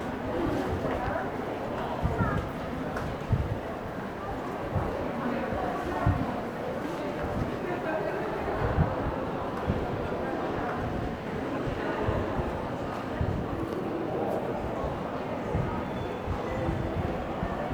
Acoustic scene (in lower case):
crowded indoor space